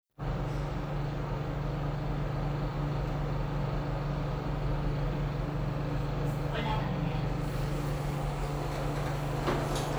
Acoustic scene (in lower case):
elevator